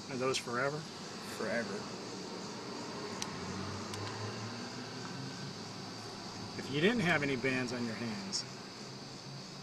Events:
[0.00, 9.62] wind
[0.06, 0.94] man speaking
[1.25, 2.25] man speaking
[1.76, 9.62] motor vehicle (road)
[3.15, 3.25] tick
[3.87, 4.12] tick
[4.98, 5.06] tick
[6.51, 8.51] man speaking

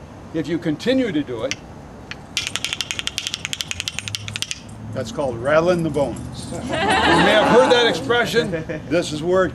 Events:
[0.00, 9.54] background noise
[2.07, 2.14] tick
[2.34, 4.63] music
[8.53, 9.02] laughter
[8.87, 9.54] male speech

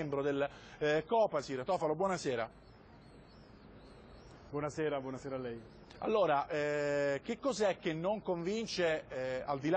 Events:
[0.00, 0.48] man speaking
[0.00, 9.75] conversation
[0.00, 9.75] mechanisms
[0.48, 0.78] breathing
[0.80, 2.47] man speaking
[2.40, 4.45] bird vocalization
[4.23, 4.36] tick
[4.52, 5.62] man speaking
[5.84, 5.94] tick
[5.97, 7.69] man speaking
[7.82, 8.97] man speaking
[9.10, 9.75] man speaking

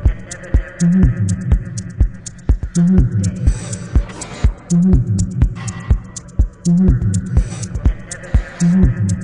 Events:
[0.00, 9.23] music

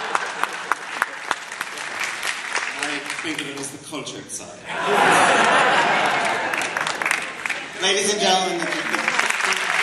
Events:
[0.00, 9.82] background noise
[0.10, 0.20] clapping
[0.36, 0.48] clapping
[0.64, 0.72] clapping
[0.92, 1.03] clapping
[1.23, 1.30] clapping
[1.55, 1.65] clapping
[1.82, 2.26] clapping
[2.41, 2.54] clapping
[2.75, 2.87] clapping
[2.78, 4.70] man speaking
[3.09, 3.38] clapping
[3.53, 3.74] clapping
[4.62, 7.46] laughter
[5.36, 6.29] clapping
[6.50, 7.60] clapping
[6.78, 9.82] crowd
[7.79, 8.93] man speaking
[8.58, 9.82] clapping

